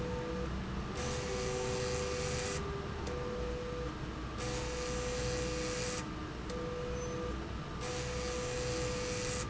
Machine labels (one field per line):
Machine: slide rail